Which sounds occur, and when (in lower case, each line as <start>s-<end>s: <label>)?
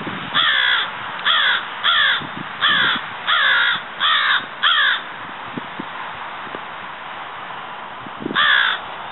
0.0s-0.5s: wind noise (microphone)
0.0s-9.1s: background noise
0.3s-0.8s: caw
1.2s-1.6s: caw
1.8s-2.2s: caw
2.1s-2.5s: wind noise (microphone)
2.6s-3.0s: caw
2.7s-3.1s: wind noise (microphone)
3.2s-3.8s: caw
4.0s-4.4s: caw
4.6s-4.9s: caw
5.5s-5.9s: wind noise (microphone)
6.4s-6.6s: wind noise (microphone)
8.0s-8.4s: wind noise (microphone)
8.3s-8.8s: caw